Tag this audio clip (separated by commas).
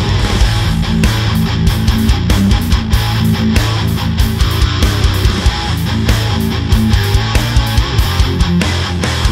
Electric guitar, Music, Plucked string instrument, Musical instrument